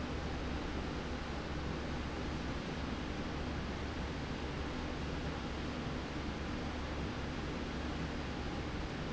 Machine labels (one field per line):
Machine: slide rail